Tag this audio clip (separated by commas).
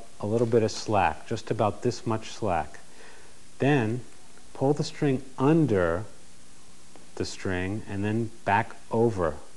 Speech